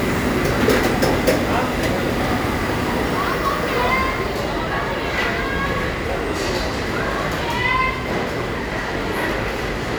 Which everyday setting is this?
crowded indoor space